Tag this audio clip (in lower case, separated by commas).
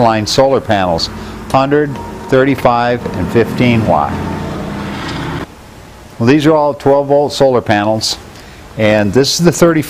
speech